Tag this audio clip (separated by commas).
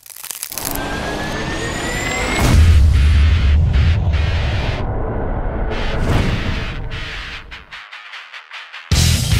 Music, Exciting music